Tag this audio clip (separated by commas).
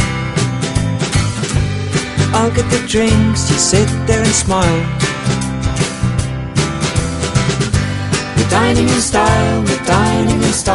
Music